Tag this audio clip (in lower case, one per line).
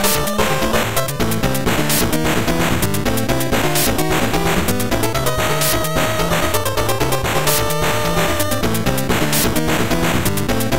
music
theme music